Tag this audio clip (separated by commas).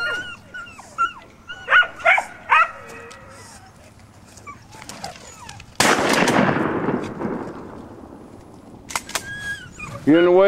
Animal